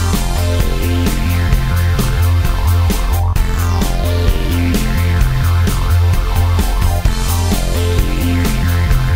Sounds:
Music

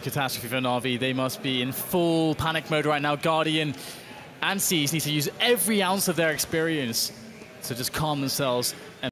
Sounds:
Speech

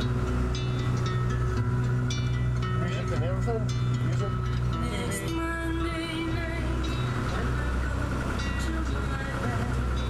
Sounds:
Speech, Music

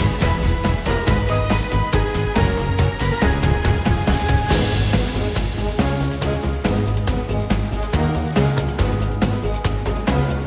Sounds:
Theme music, Music

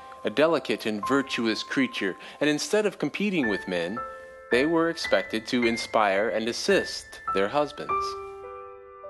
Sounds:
Speech, Music

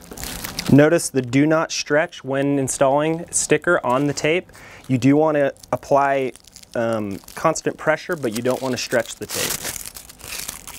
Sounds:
Speech

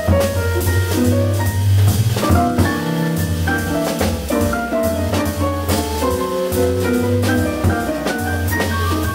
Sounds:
Music

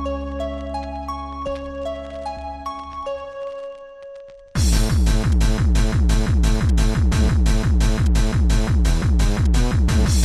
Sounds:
Music, Exciting music, Dance music

